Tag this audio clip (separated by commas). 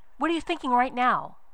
Female speech, Human voice, Speech